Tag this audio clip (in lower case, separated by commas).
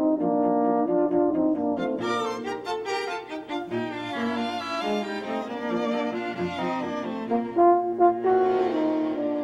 french horn, brass instrument, playing french horn